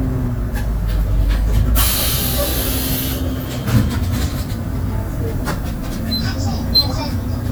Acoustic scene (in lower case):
bus